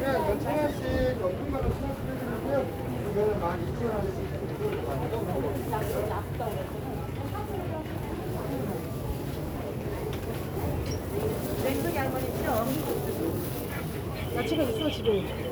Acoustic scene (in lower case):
crowded indoor space